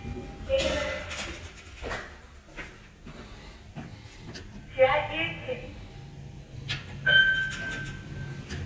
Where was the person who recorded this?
in an elevator